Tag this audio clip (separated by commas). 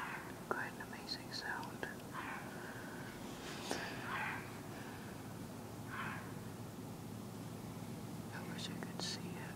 Speech